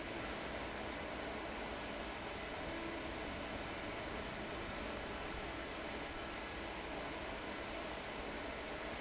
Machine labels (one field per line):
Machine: fan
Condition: abnormal